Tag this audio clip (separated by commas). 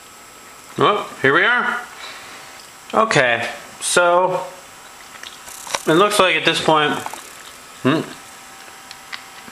Speech, inside a small room